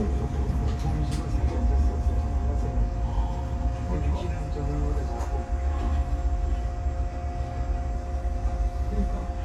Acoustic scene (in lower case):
subway train